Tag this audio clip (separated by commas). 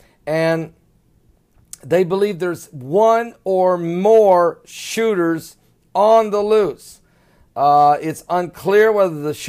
Speech